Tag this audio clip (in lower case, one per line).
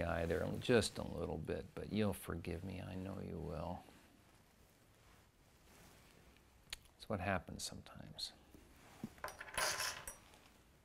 speech